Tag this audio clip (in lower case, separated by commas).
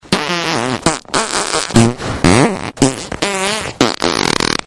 fart